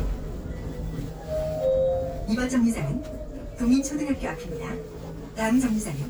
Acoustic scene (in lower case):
bus